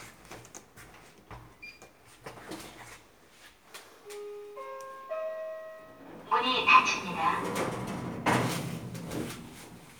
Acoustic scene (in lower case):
elevator